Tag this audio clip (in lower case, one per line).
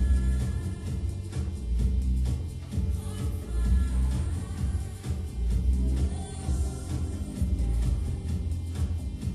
music